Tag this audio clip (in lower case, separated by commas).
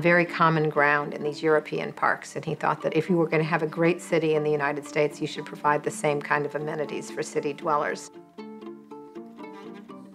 speech, music